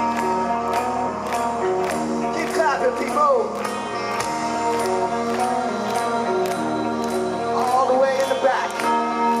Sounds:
Music, Speech

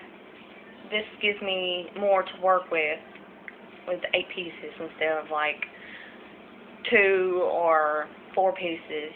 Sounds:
Speech

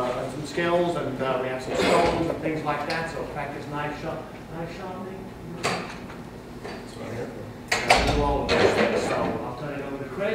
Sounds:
Speech

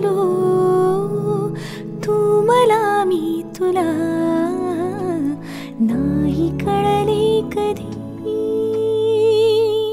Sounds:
Music

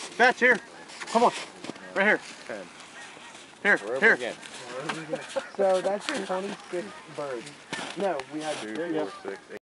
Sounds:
Speech, Honk

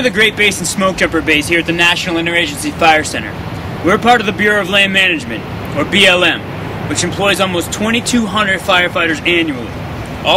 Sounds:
Speech

